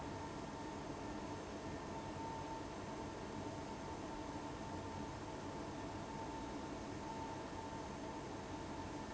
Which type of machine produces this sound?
fan